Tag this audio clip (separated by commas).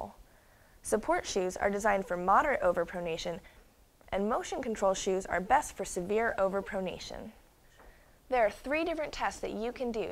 Speech, inside a small room